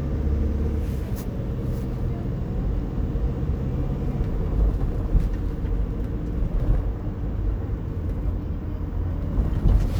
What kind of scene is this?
car